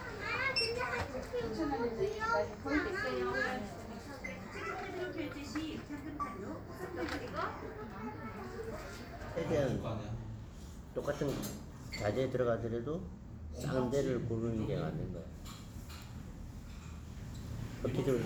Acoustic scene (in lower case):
crowded indoor space